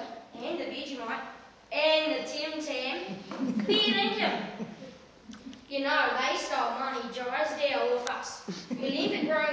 An child is speaking and people are laughing softly